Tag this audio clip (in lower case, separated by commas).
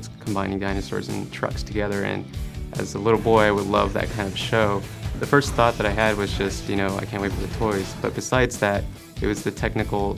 music, speech